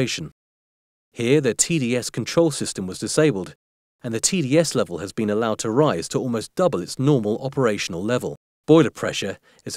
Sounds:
Speech

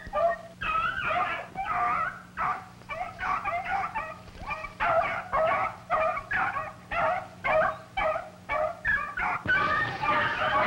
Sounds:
dog baying

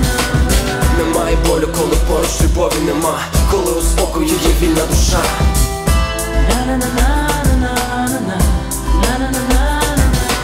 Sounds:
Music, Singing

